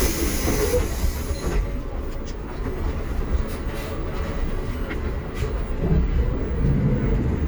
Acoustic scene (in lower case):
bus